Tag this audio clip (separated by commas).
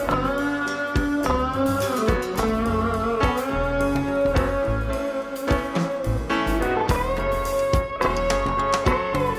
Music, inside a small room